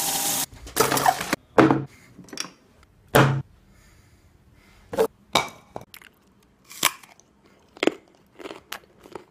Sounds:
inside a small room, mastication, Crunch

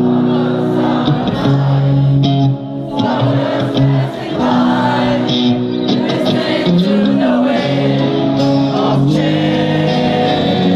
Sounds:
Music

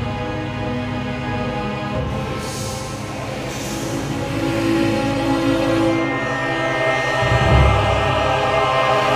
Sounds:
Music, Background music

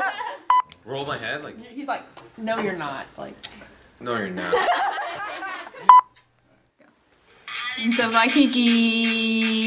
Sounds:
Speech, inside a small room

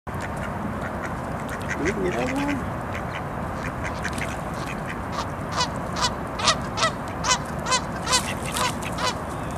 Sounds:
Animal, Quack, Duck, duck quacking, Speech

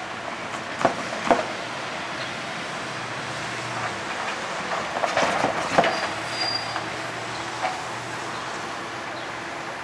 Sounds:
train wagon, outside, rural or natural, Vehicle, Train

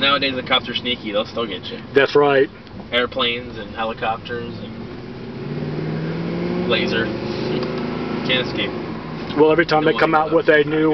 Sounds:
Speech, Vehicle, Motor vehicle (road), Car

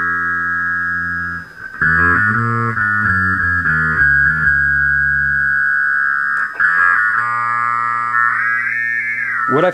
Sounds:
Guitar, Effects unit, Music

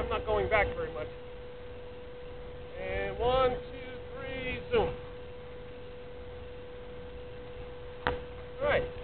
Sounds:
monologue, Speech

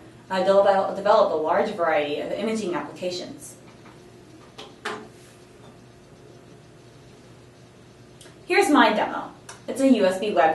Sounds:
Speech

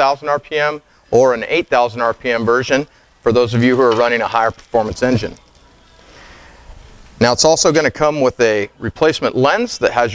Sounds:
Speech

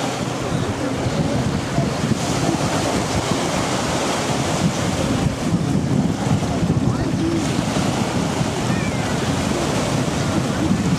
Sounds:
Speech, outside, rural or natural

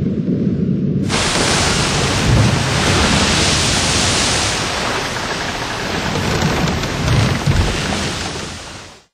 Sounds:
Boat, Vehicle

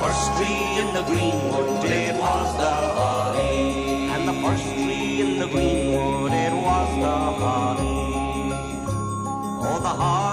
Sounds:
Christian music, Music, Christmas music

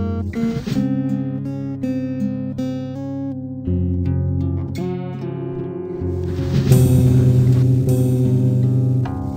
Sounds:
Music

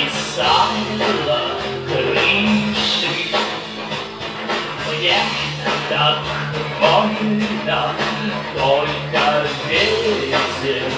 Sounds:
Music

